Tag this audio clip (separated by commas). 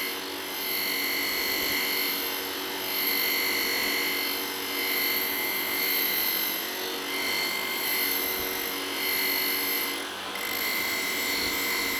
Tools